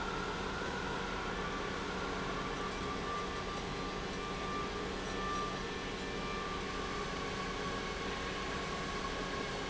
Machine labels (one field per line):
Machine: pump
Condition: normal